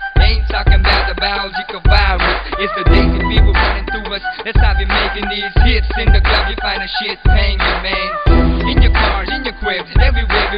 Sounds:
Music

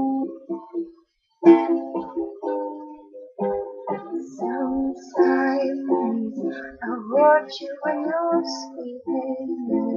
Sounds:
Music, Ukulele, inside a small room

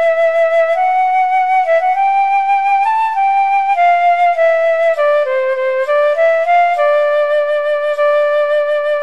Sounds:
Music, Flute

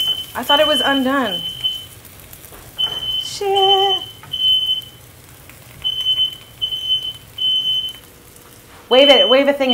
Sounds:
smoke alarm, inside a small room, Speech

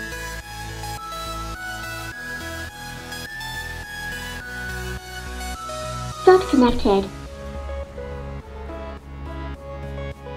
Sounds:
Music

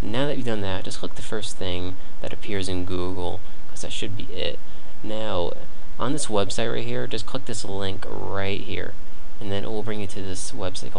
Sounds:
Speech

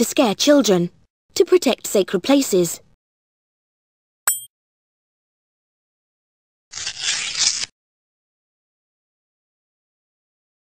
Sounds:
Speech

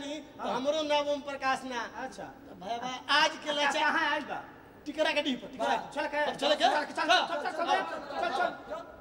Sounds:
Speech, Music

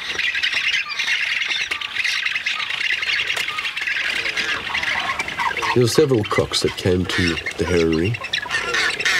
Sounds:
Squawk, outside, rural or natural, Speech

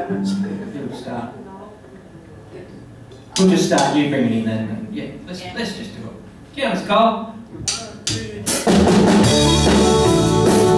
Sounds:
Violin, Musical instrument, Music, Speech

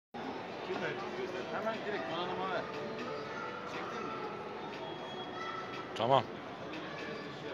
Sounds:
Speech, Music

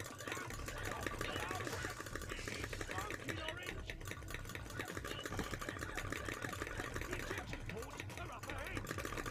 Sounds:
Speech

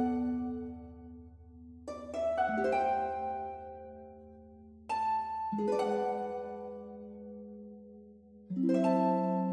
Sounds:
Music, Background music

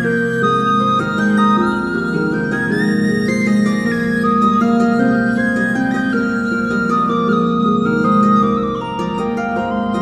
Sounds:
Music, Tender music, Flute

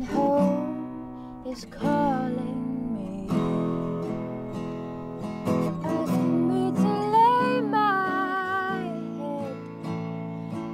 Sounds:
Music

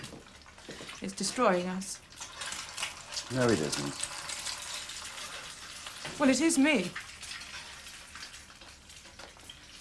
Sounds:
Frying (food), Sizzle

